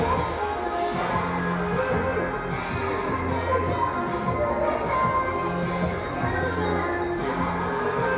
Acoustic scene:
crowded indoor space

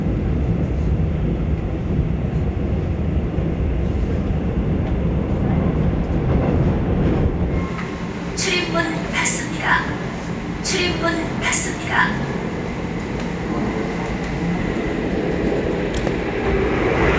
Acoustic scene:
subway train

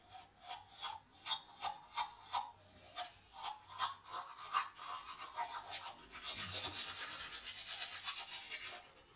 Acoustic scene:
restroom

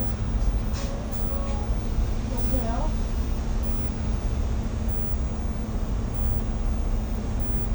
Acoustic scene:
bus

